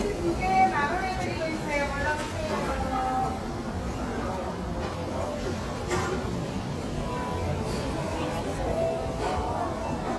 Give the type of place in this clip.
restaurant